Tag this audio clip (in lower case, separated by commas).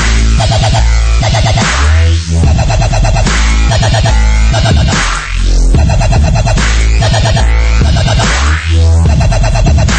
electronic music, dubstep, music